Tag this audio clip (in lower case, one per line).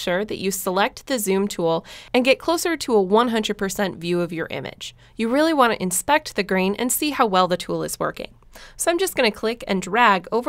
speech